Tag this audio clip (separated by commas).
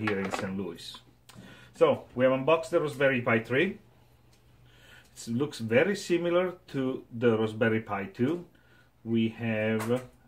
Speech